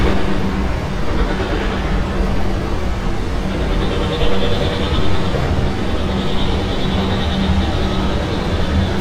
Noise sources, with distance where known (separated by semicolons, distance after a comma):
hoe ram